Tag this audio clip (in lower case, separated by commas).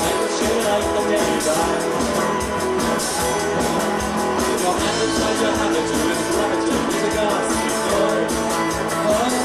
blues, independent music, music